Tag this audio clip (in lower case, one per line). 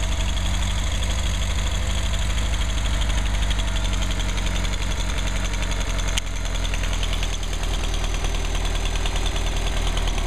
idling
engine